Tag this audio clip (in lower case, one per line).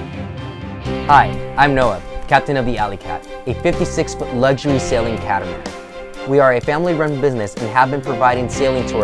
music
speech